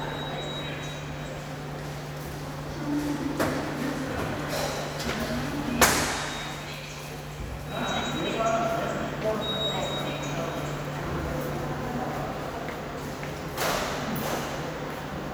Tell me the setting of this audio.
subway station